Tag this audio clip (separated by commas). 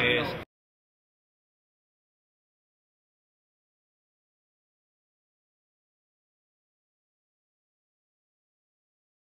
Speech